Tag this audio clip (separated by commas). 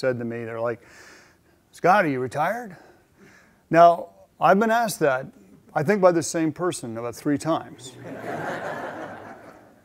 Speech